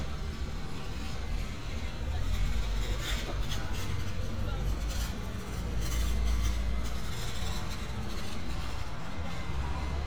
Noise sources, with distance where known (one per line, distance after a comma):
engine of unclear size
person or small group talking, far